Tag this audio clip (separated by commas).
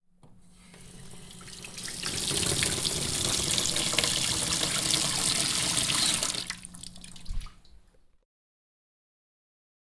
Water tap, Sink (filling or washing), home sounds